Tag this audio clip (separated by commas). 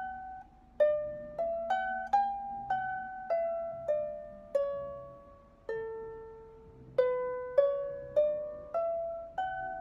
playing harp